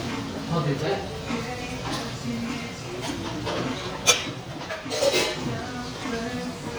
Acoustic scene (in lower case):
restaurant